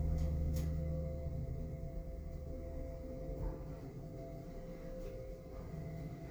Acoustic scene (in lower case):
elevator